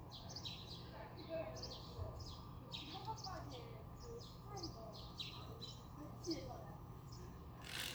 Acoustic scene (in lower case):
residential area